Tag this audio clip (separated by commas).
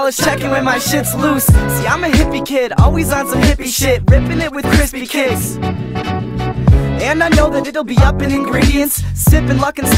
Music